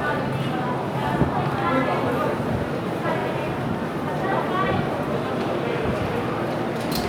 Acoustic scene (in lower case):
subway station